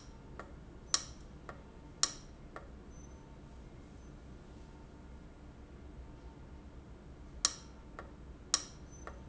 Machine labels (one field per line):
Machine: valve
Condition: abnormal